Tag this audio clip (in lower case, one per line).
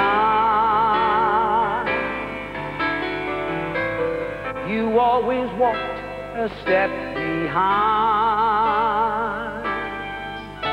music